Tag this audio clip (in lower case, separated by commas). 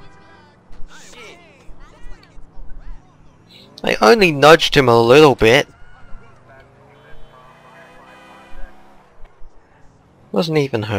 vehicle, car, speech